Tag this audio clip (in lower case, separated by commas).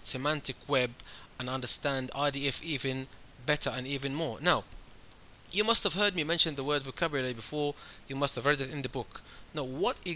speech